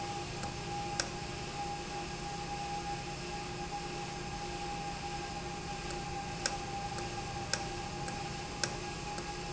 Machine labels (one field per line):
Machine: valve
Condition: normal